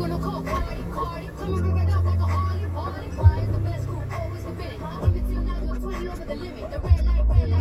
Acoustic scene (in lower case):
car